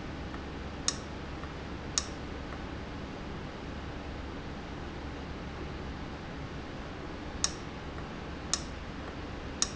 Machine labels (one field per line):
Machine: valve